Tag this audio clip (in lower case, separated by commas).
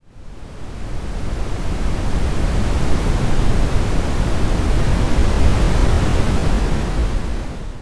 waves, ocean, water